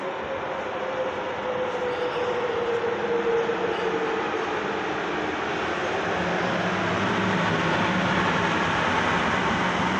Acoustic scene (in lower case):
subway station